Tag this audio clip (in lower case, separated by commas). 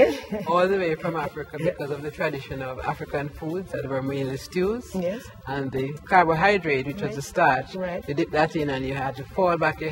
music, speech